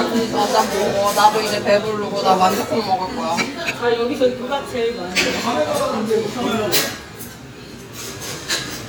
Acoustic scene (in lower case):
restaurant